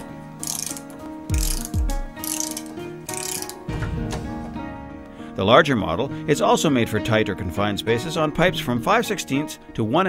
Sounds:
Speech, Tools, Music

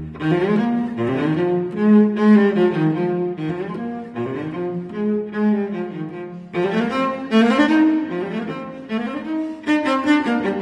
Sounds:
String section

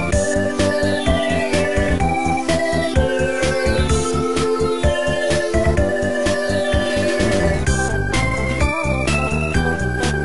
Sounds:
Music

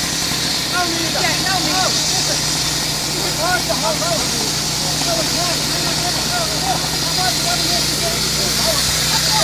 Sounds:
Speech

